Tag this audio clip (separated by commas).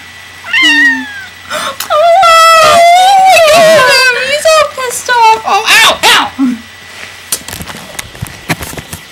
Animal, Cat